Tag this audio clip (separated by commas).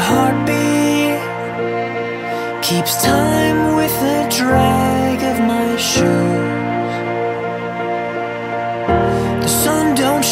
Music